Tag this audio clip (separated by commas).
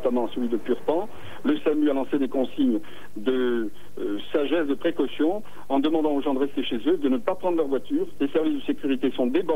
Speech